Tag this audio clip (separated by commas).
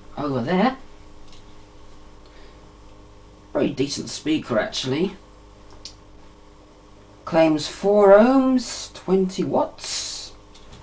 Speech